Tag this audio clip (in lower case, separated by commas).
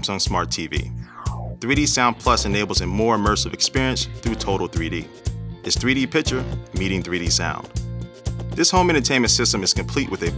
music, speech